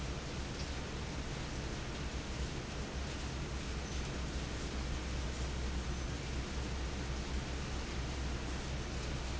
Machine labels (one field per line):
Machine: fan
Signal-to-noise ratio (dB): -6 dB